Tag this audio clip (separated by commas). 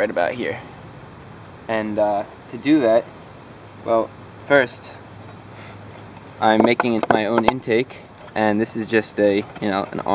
Speech